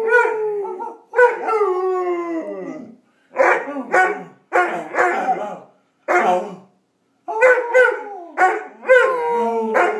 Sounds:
Dog, Howl, pets, Animal, canids

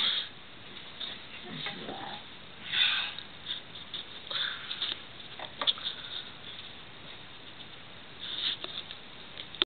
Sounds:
Speech

